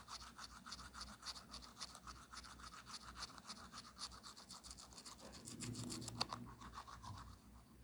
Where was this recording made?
in a restroom